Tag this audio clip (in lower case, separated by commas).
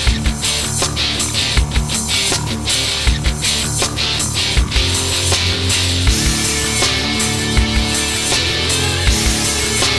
music